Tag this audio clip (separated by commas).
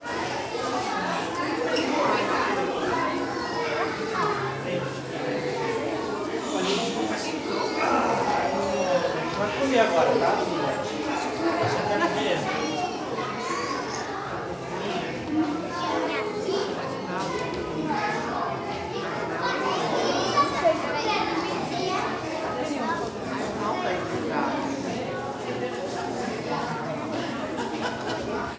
Speech, Human voice, Chatter, kid speaking, Conversation, man speaking, Human group actions, Laughter